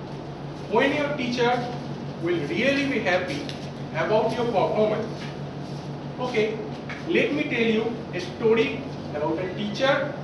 Man is talking